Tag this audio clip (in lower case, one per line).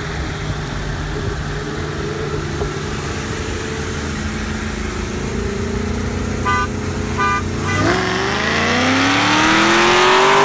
car
outside, urban or man-made
race car
engine
vehicle